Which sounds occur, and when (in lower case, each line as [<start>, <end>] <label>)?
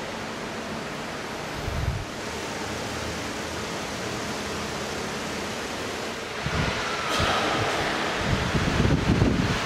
[0.00, 9.65] hubbub
[6.33, 9.65] wind
[7.08, 8.25] cough